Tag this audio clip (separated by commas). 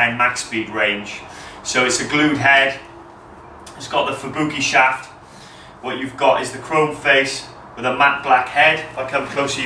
Speech